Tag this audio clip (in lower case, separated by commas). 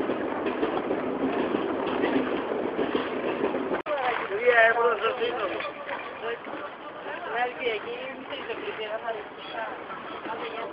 speech